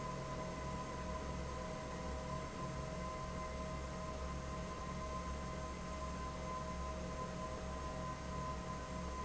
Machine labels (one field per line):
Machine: fan